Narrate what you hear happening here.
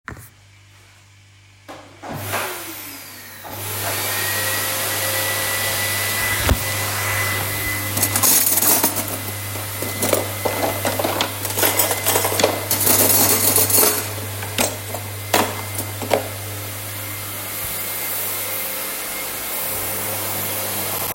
My roommate started vacuuming and I'm sorting the cutlery in the drawer.